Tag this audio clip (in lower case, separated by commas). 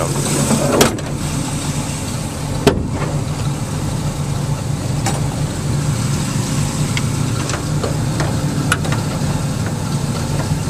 traffic noise